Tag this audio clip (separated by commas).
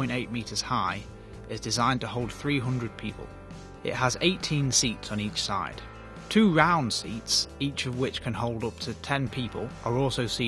Music, Speech